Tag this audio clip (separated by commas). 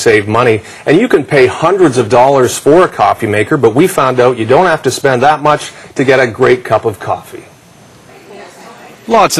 Speech